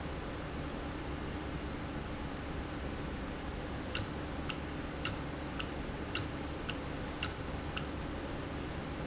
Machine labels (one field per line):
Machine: valve